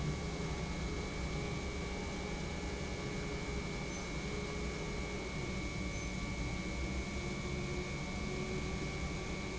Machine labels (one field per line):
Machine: pump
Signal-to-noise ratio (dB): -6 dB